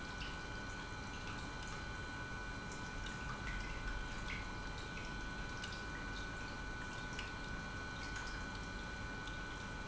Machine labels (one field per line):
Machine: pump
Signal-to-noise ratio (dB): 6 dB